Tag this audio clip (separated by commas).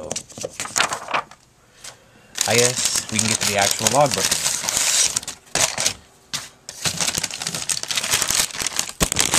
Crackle